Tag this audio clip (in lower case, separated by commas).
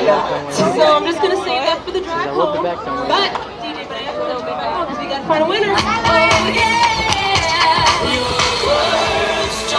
female singing, music, speech